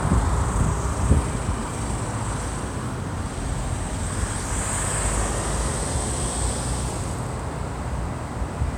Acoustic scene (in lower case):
street